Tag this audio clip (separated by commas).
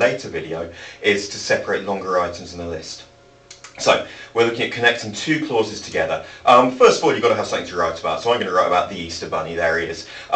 Speech